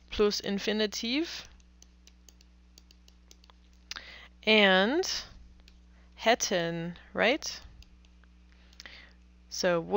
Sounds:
speech

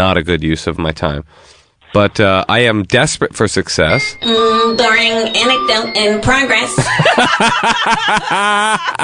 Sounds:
speech

